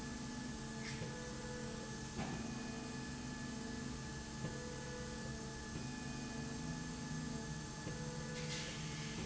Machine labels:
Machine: slide rail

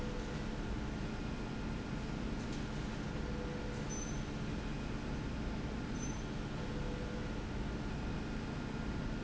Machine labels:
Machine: slide rail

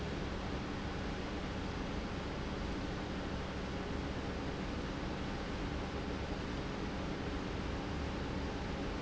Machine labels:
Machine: pump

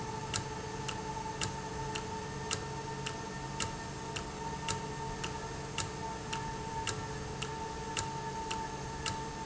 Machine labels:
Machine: valve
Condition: normal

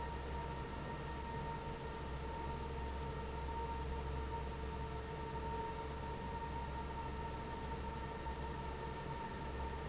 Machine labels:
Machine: fan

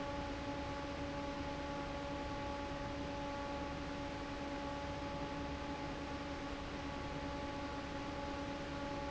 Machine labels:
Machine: fan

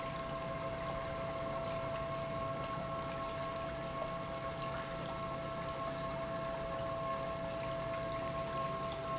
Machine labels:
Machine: pump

